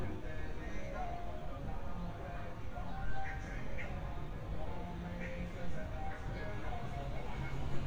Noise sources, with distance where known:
music from a fixed source

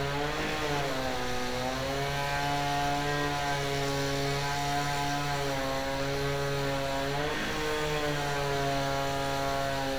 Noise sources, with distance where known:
unidentified powered saw

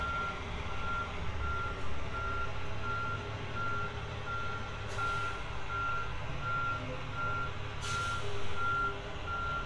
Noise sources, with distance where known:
large-sounding engine, near; reverse beeper, near

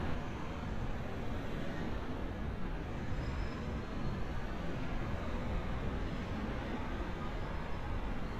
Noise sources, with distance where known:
engine of unclear size, far

